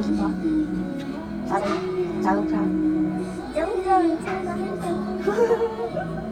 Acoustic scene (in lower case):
restaurant